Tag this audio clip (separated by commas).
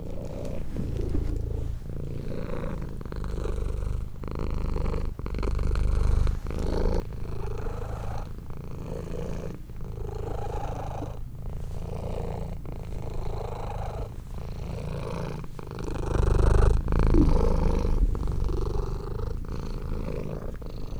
pets, Animal, Cat, Purr